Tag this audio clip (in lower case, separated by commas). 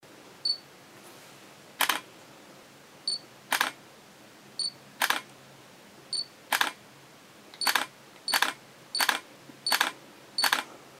camera, mechanisms